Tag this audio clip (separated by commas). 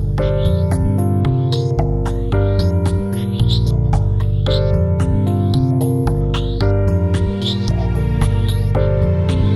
Music